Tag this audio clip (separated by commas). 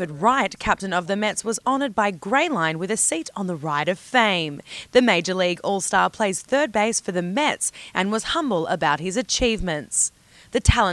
Speech